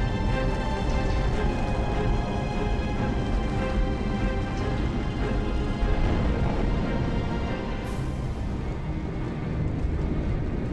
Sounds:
music

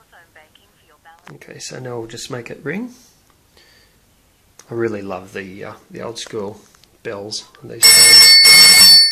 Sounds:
telephone bell ringing

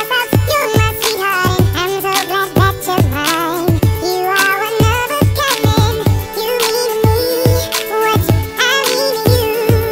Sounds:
music

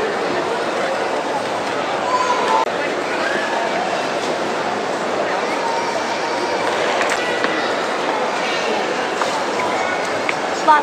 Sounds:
speech

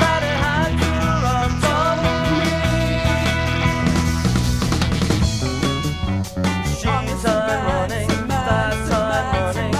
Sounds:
psychedelic rock
music

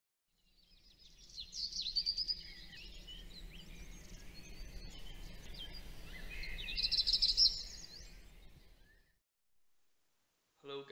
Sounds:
bird song

